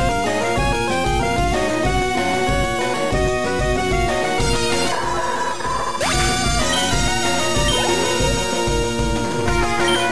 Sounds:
Music

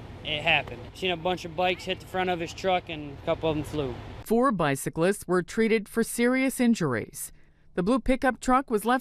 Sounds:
Speech

